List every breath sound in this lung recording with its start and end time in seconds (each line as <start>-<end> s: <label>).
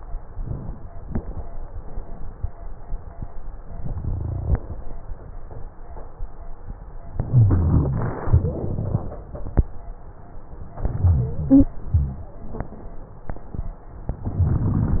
7.19-8.18 s: inhalation
7.29-8.18 s: rhonchi
8.20-9.19 s: exhalation
8.20-9.19 s: wheeze
10.81-11.67 s: inhalation
10.93-11.71 s: wheeze
11.86-12.33 s: exhalation
11.86-12.33 s: rhonchi